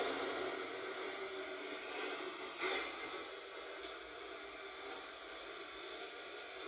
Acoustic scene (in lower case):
subway train